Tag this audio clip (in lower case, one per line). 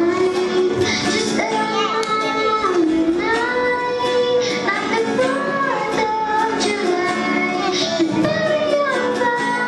child singing
music